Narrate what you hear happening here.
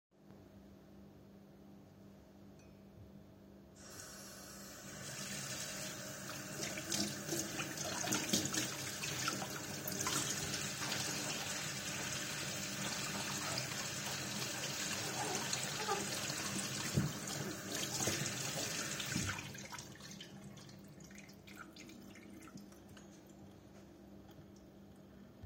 I decided to wash my dishes. I turned the water on, washed them, turned the water off. That's it.